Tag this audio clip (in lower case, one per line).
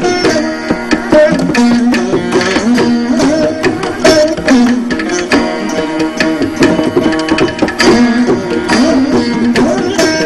percussion
tabla
drum